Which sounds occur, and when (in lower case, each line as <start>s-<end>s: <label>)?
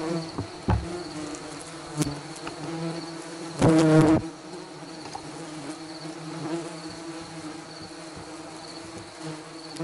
0.0s-9.8s: bee or wasp
0.0s-9.8s: bee or wasp
0.0s-9.8s: cricket
0.0s-9.8s: wind
0.3s-0.4s: tick
0.6s-0.8s: tap
2.0s-2.0s: tick
2.4s-2.5s: tick
3.6s-4.1s: generic impact sounds
5.0s-5.2s: generic impact sounds
5.0s-5.2s: tap
5.7s-5.7s: tick
9.2s-9.4s: tap
9.7s-9.8s: generic impact sounds